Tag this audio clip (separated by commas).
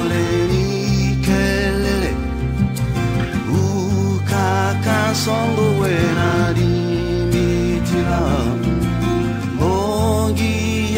Christmas music